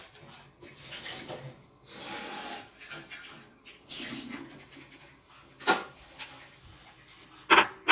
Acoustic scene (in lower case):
kitchen